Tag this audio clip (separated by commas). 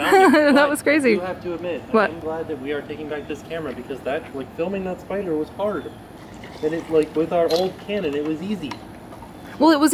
Water, Speech